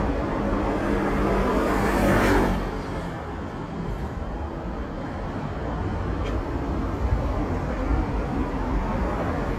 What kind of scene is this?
street